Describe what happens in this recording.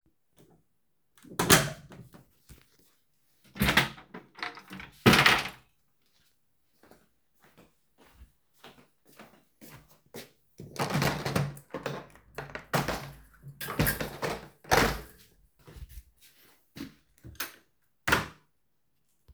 I opened the door and then opened the wardrobe. After that I walked across the room and opened the window. Finally I dropped a notebook onto the desk